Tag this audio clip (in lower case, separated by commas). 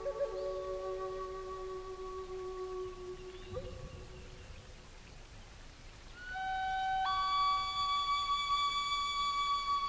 music, flute